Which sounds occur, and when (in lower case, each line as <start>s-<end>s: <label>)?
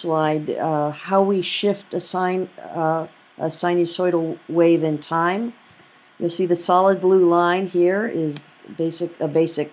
0.0s-2.5s: female speech
0.0s-9.7s: mechanisms
2.6s-3.1s: female speech
2.7s-2.8s: clicking
3.4s-4.3s: female speech
4.5s-5.5s: female speech
5.7s-6.1s: generic impact sounds
6.2s-8.6s: female speech
8.3s-8.4s: clicking
8.8s-9.7s: female speech